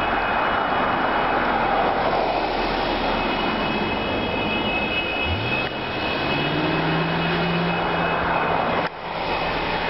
Auto passing at high speed